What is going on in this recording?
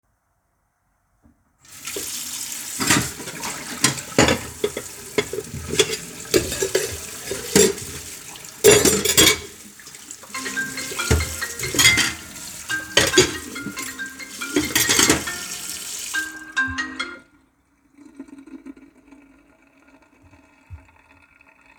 I ran water in the kitchen sink while moving and washing dishes. During the same time a phone notification rang. All three sounds water dishes and phone overlapped in the middle.